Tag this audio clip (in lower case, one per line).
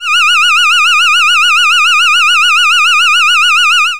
alarm